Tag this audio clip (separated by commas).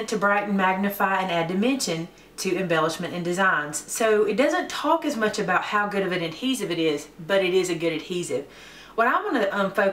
Speech